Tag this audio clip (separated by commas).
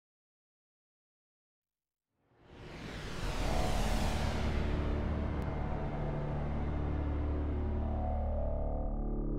Sonar, Music